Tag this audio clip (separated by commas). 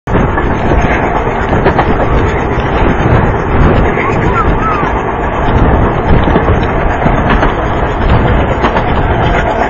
train horning